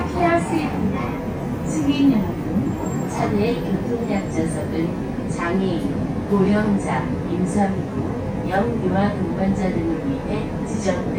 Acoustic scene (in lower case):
bus